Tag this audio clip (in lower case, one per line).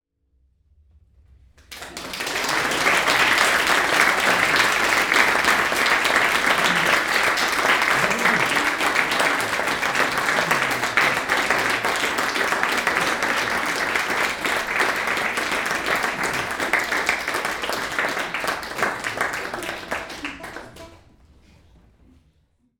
applause
human group actions